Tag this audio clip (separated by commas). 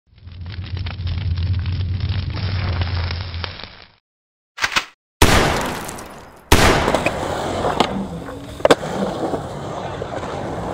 outside, urban or man-made, skateboarding, Skateboard